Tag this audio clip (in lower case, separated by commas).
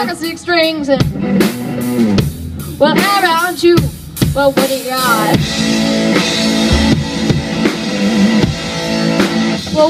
music, speech